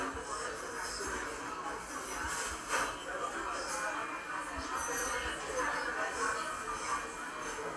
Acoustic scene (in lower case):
cafe